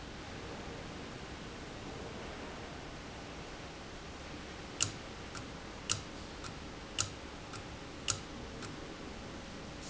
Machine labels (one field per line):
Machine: valve